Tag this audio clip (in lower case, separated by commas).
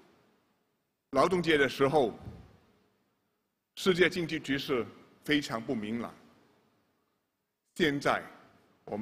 male speech, speech, monologue